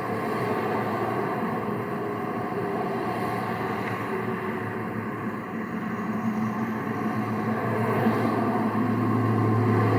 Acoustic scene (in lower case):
street